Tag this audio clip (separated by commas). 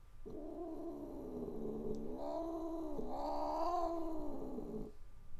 Cat, Animal, Domestic animals, Growling